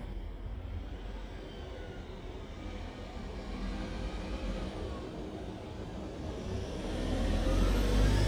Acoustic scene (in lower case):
residential area